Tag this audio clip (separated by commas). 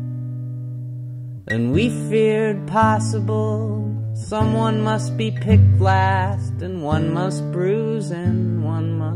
Music